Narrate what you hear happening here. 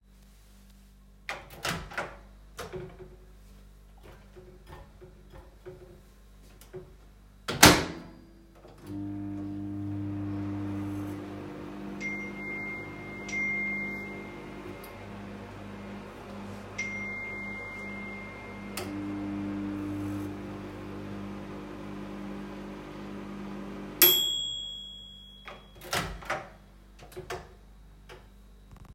I opened the microwave, put in some cold rice and reheated it. While it was heating I got notifications fom WhatsApp.